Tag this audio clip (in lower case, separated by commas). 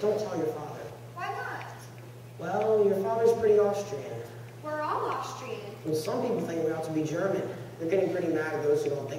speech